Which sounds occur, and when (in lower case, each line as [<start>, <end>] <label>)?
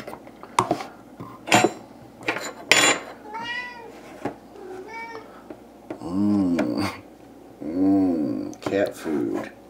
[0.00, 9.65] mechanisms
[4.56, 5.28] meow
[6.57, 6.71] tap
[7.65, 8.61] human voice
[8.65, 9.54] male speech